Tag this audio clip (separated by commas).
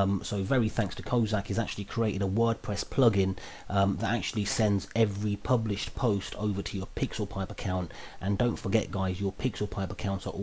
Speech